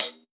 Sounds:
percussion, cymbal, hi-hat, musical instrument, music

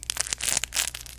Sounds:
crinkling

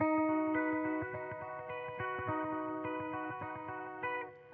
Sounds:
guitar, musical instrument, plucked string instrument, electric guitar, music

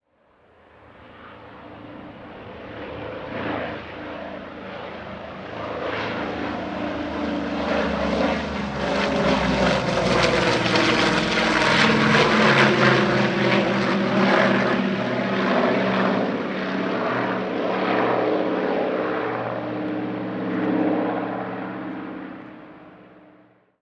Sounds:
aircraft, vehicle

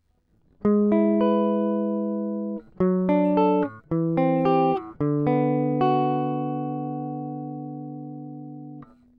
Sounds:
musical instrument, guitar, plucked string instrument, music

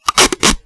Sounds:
packing tape, home sounds

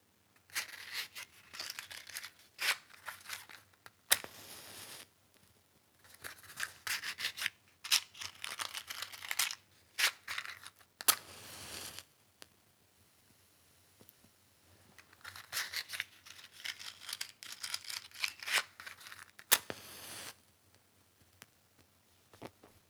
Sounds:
fire

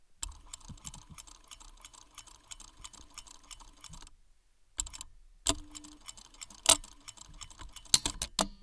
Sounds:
mechanisms

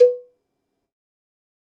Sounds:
cowbell, bell

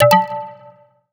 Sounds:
alarm

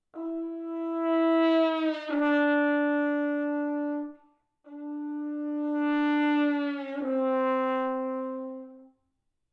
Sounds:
music, brass instrument, musical instrument

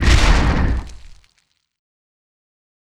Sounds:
boom, explosion

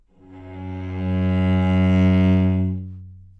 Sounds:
musical instrument, bowed string instrument, music

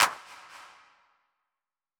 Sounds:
hands, clapping

